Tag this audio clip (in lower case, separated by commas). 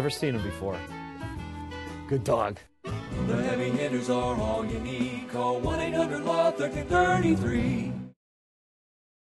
speech, music